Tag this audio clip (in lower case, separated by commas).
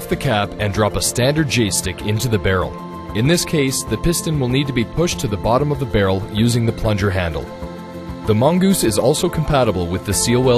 speech, music